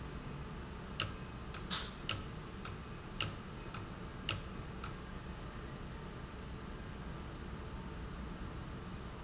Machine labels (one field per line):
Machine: valve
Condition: abnormal